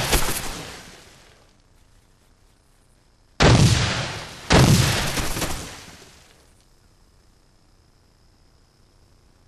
Far away gunfire followed by close gunfire